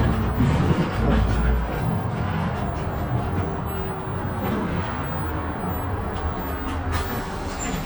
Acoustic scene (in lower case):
bus